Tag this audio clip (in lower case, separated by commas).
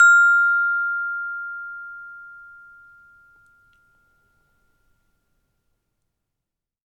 marimba, percussion, music, mallet percussion, musical instrument